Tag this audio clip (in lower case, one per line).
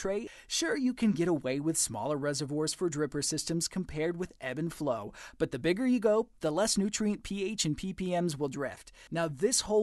speech